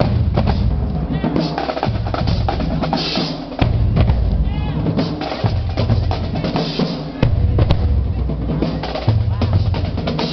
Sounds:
Speech, Music

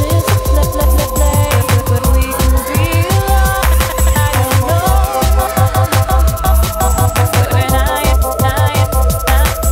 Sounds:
Music, Drum and bass

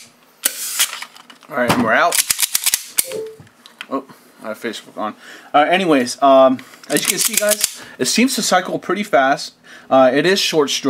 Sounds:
inside a small room, Speech

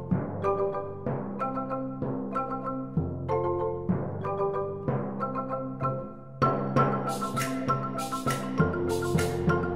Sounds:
Music

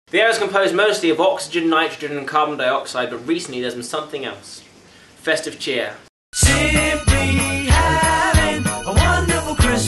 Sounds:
Jingle (music), Speech, Music

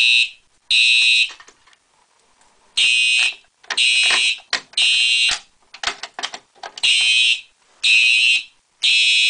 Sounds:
Fire alarm

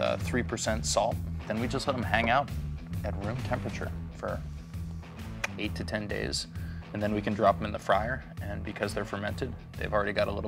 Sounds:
Music, Speech

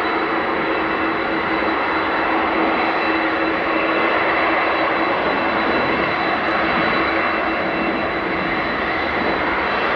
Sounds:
airplane flyby

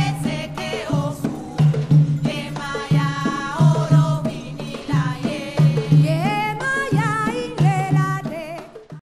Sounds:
Music, Percussion

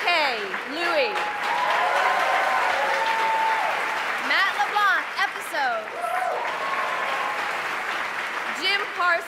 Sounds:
Applause, Speech

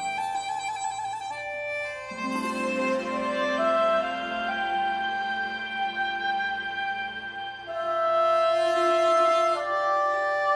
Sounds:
playing oboe

